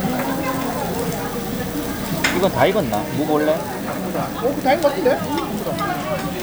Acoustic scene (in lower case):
restaurant